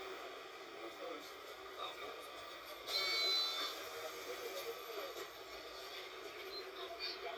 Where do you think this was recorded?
on a bus